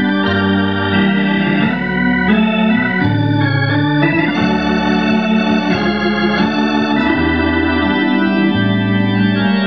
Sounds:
Organ, Music

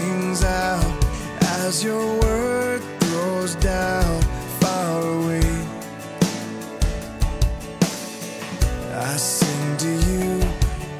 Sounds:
Music, Independent music

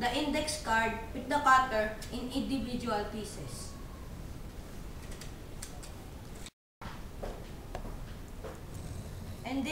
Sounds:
Speech

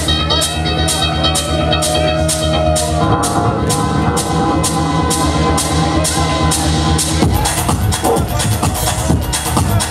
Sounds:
Electronic music, Techno, Music

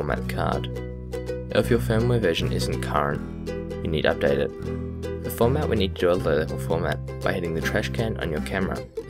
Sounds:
Speech, Music

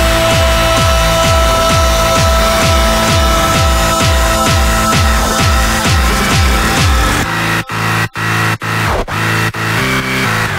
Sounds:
Music, Echo

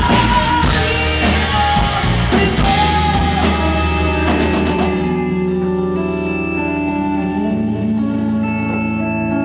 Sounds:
Singing, Music, inside a large room or hall

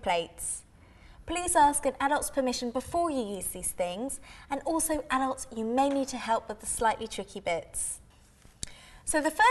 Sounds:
Speech

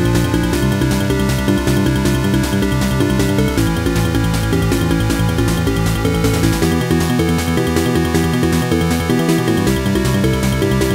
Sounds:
Pop music, Music

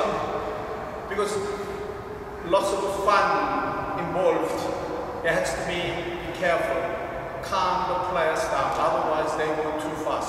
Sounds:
playing badminton

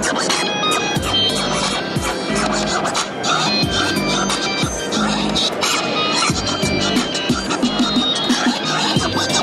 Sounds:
Music, Scratching (performance technique)

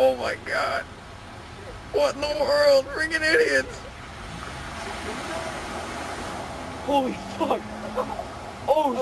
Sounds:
Speech, Stream

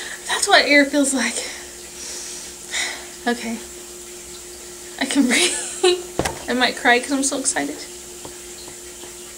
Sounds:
Speech, Breathing

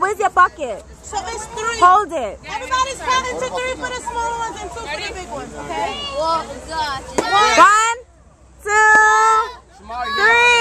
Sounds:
Speech

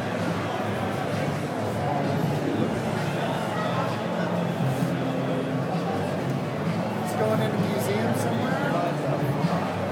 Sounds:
Speech

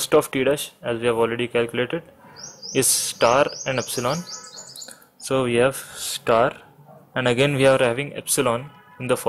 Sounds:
Writing, Speech

